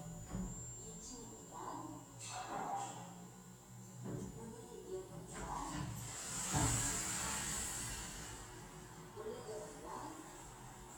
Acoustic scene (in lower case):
elevator